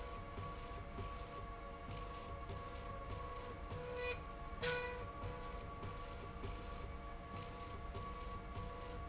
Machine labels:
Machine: slide rail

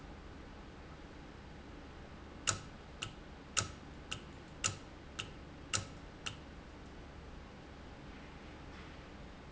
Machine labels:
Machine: valve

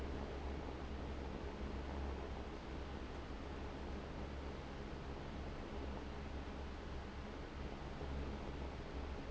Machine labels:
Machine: fan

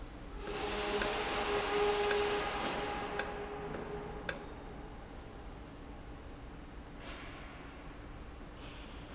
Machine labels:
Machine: valve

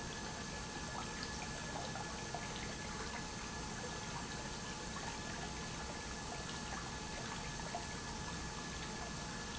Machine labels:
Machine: pump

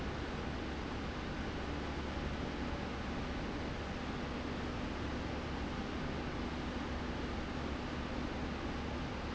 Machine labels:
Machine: fan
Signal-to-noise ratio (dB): -6 dB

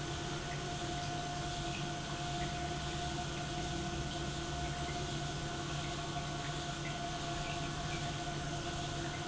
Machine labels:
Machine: pump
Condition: normal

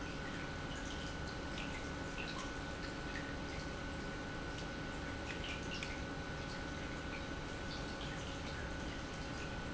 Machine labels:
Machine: pump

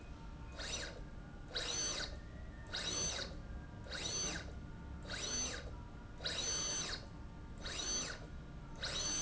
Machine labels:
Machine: slide rail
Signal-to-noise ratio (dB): 6 dB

